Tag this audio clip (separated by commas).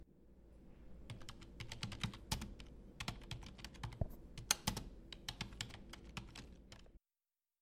Computer keyboard, home sounds, Typing